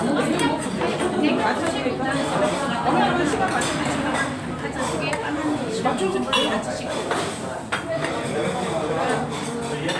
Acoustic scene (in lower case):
restaurant